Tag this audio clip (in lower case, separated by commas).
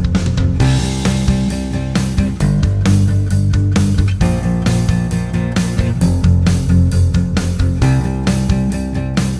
music, plucked string instrument, guitar, musical instrument, acoustic guitar